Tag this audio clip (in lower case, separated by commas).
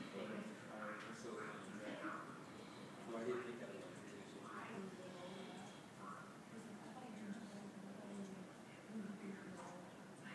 speech